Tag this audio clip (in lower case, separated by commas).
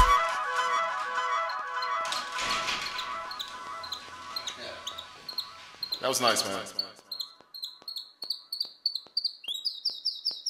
speech, music